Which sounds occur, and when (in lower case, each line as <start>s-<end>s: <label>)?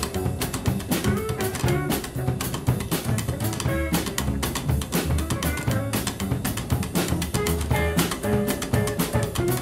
0.0s-9.6s: music
3.0s-3.6s: female speech